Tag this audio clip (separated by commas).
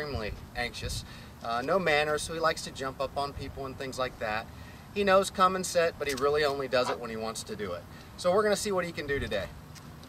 Bow-wow, Speech